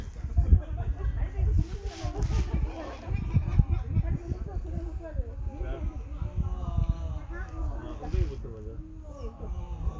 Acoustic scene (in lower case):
park